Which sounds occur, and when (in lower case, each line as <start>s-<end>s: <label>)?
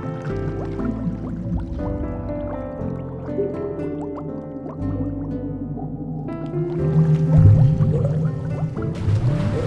0.0s-9.6s: music
6.2s-8.9s: gurgling
8.8s-9.6s: slosh